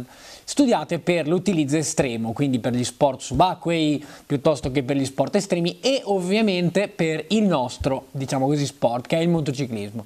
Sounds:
speech

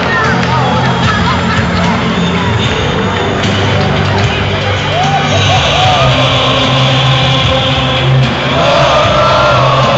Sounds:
music, speech

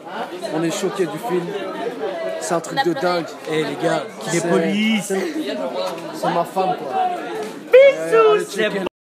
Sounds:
speech

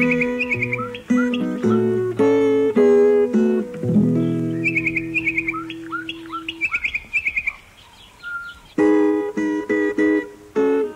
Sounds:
music

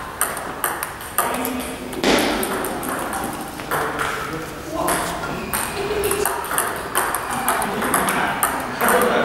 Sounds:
playing table tennis

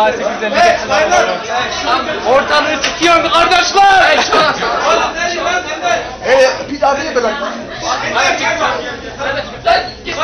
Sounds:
speech

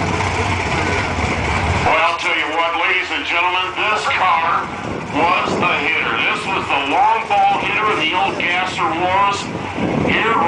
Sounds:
speech

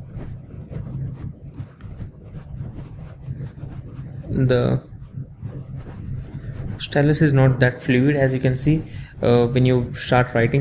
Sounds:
inside a small room, speech

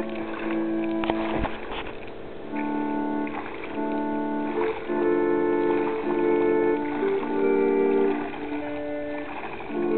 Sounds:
music, pumping water, pump (liquid)

